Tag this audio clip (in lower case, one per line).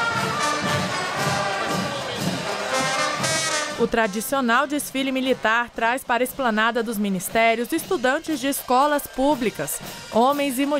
people marching